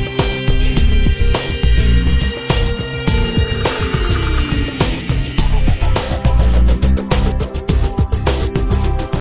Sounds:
Music

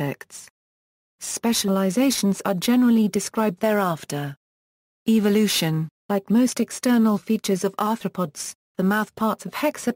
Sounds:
Speech

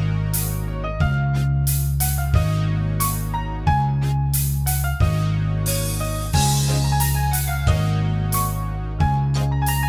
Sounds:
Music

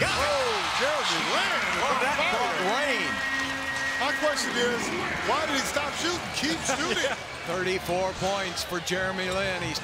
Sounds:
Basketball bounce

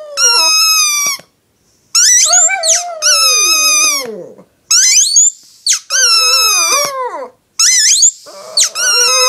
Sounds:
dog howling

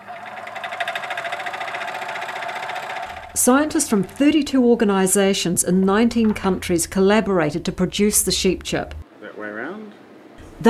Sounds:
Speech

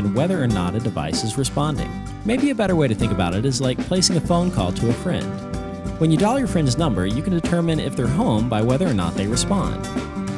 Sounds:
Speech, Music

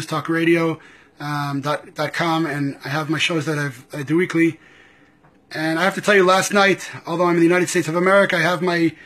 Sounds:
Speech

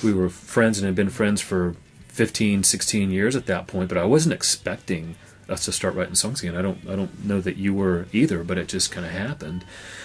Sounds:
Speech, Music

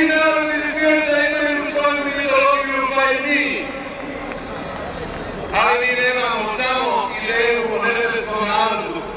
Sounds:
man speaking, monologue, Speech

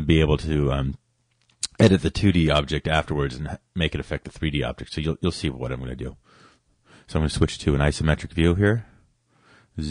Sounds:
Speech

